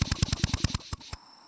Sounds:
drill, power tool, tools

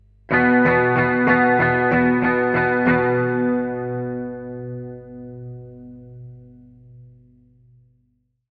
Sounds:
musical instrument, music, plucked string instrument, guitar, electric guitar

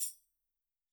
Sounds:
percussion, tambourine, musical instrument, music

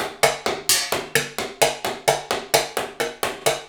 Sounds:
musical instrument, percussion, music, drum kit

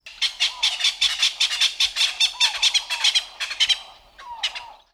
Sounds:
bird, animal, wild animals

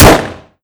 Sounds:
explosion, gunfire

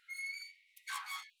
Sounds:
domestic sounds, door

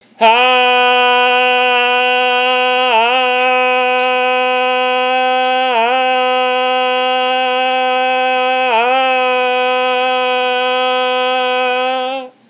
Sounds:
singing, human voice

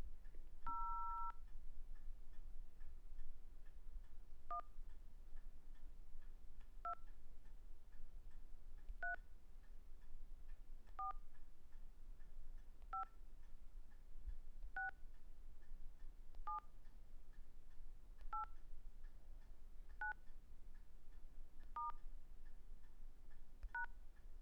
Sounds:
telephone, alarm

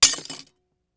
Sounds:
shatter, glass

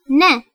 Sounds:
human voice, woman speaking, speech

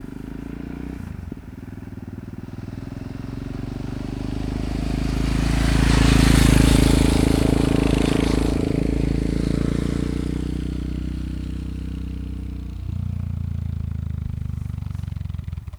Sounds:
vehicle, motor vehicle (road), motorcycle

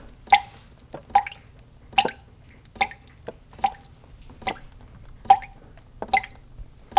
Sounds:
liquid, water, drip

